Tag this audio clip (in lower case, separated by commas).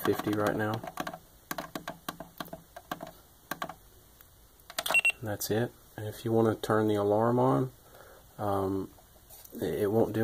speech